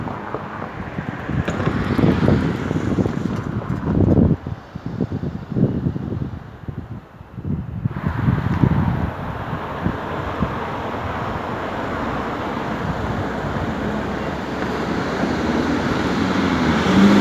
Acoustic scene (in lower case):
street